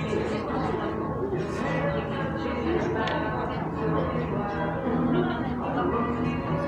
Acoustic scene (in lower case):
cafe